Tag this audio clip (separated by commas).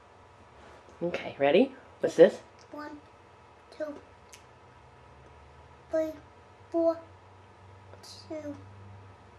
Speech